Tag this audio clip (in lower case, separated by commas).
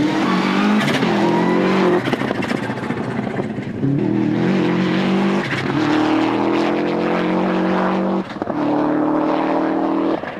car, motor vehicle (road), vehicle